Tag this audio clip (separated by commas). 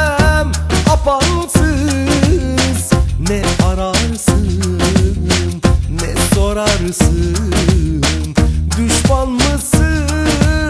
Soundtrack music, Music